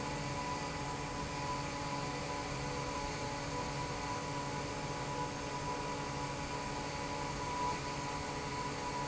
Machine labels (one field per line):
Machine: fan